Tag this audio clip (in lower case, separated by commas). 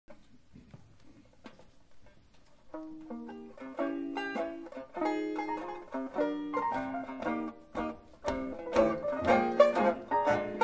music, mandolin, musical instrument